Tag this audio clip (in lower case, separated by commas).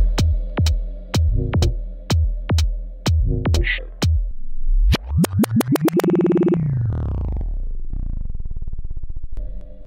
music, electronic music, techno, synthesizer